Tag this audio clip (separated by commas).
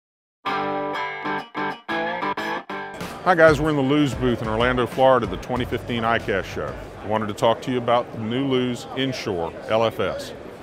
Speech, Distortion, Music